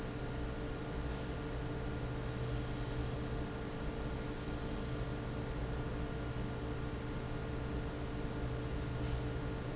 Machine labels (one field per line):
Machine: fan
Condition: normal